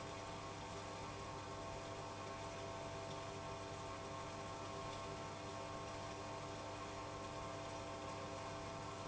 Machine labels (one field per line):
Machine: pump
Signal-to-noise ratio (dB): 6 dB